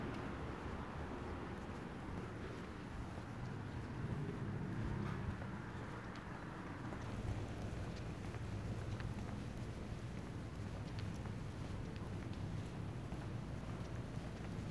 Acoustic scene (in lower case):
residential area